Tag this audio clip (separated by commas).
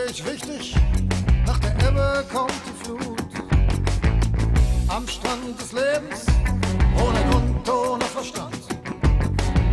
Music